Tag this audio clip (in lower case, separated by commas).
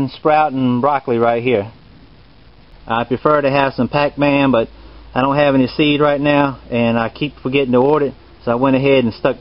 speech